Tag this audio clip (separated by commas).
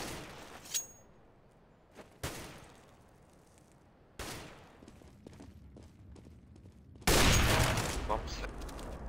Speech